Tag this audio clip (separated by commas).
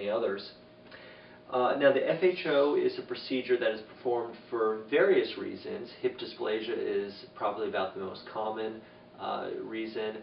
Speech